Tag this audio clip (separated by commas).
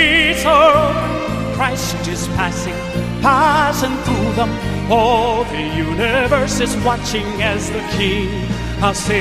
Music